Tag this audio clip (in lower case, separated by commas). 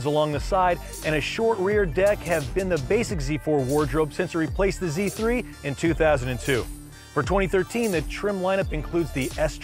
speech, music